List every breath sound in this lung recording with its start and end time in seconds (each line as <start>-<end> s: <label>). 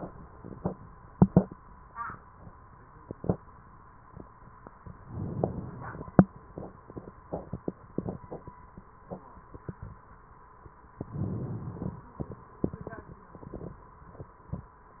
5.00-6.10 s: inhalation
10.93-12.03 s: inhalation